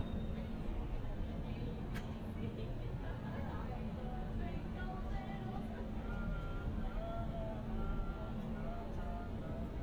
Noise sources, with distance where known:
unidentified human voice, far

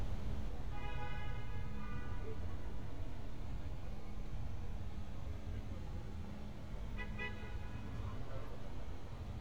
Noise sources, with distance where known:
car horn, far

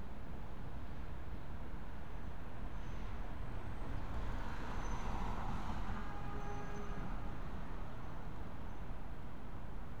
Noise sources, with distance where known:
car horn, far

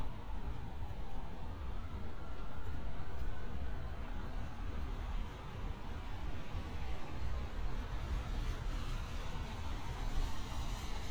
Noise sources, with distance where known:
siren, far

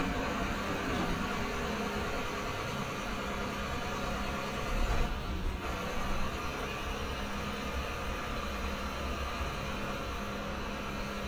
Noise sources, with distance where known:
large-sounding engine, near

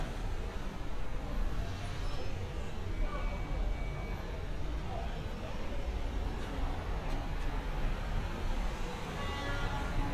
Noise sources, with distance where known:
car horn, far
person or small group talking, far

